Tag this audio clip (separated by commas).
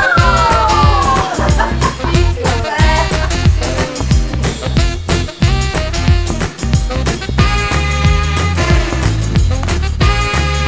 Speech, Music